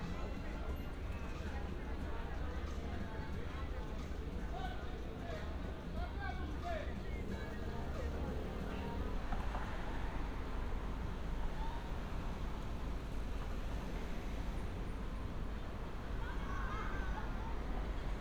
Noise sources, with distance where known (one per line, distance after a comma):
person or small group shouting